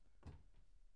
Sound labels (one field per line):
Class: cupboard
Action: opening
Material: fibreboard